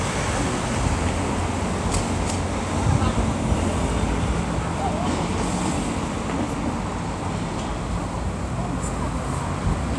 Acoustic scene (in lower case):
street